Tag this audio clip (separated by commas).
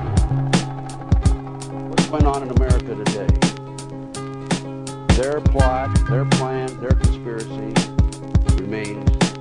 Speech, Music